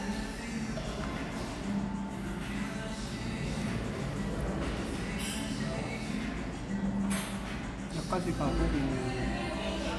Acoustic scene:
cafe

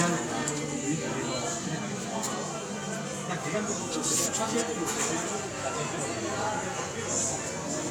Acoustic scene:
cafe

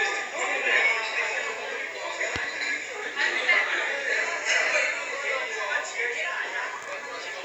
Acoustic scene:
crowded indoor space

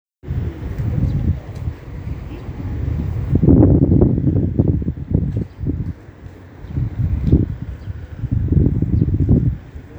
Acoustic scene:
residential area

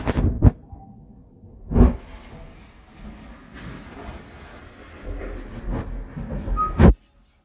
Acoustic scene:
elevator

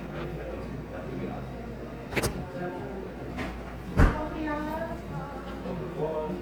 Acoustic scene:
cafe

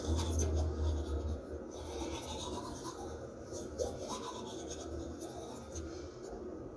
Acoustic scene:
restroom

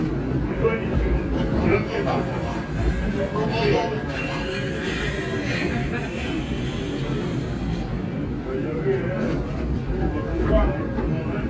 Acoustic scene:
subway train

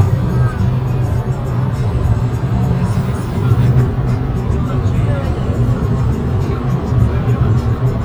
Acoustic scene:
car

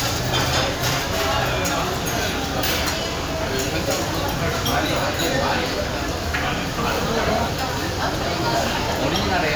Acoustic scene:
crowded indoor space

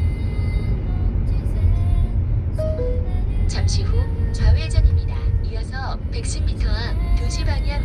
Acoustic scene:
car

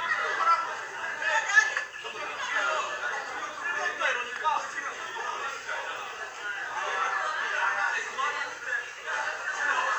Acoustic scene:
crowded indoor space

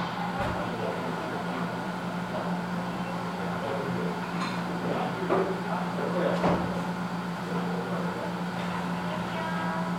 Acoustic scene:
cafe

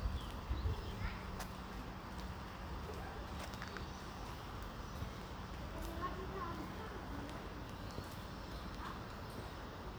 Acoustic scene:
residential area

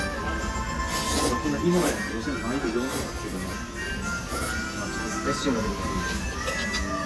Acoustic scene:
restaurant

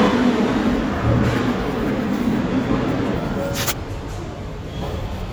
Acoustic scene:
subway station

